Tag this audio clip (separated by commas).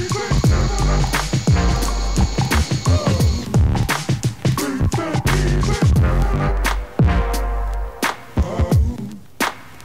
Music